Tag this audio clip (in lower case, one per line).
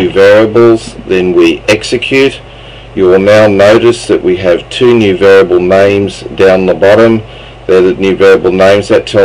speech